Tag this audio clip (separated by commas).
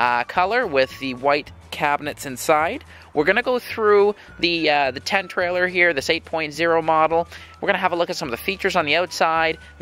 Speech